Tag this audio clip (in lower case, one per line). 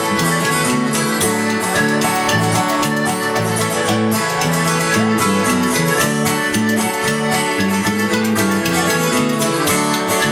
music